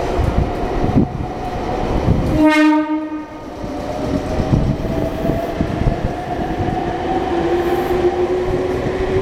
Train horn and a moving train